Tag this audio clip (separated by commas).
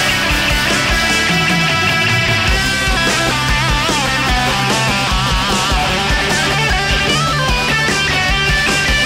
Musical instrument, Guitar, Electric guitar, Strum, Plucked string instrument, Music